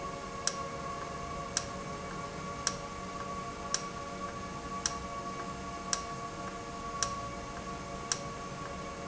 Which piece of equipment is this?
valve